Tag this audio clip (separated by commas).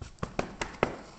Run